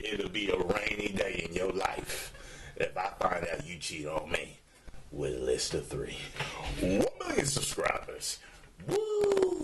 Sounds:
Speech, inside a small room

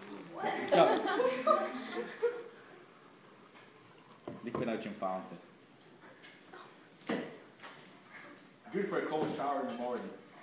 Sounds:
Speech

